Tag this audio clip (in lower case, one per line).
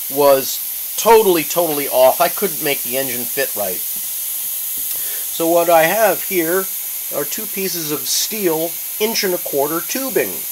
speech